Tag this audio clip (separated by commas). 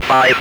Human voice, Speech